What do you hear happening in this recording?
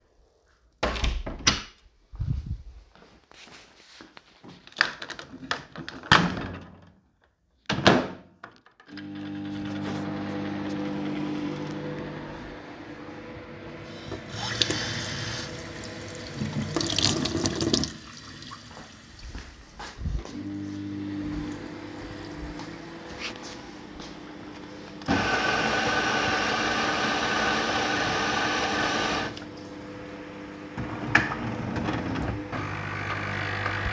In the kitchen, I opened or closed the door while the microwave was running. I also turned on running water and the coffee machine so that multiple appliance sounds overlap for several seconds.